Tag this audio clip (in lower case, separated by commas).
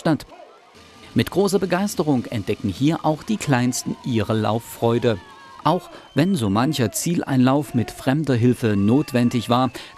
outside, urban or man-made, speech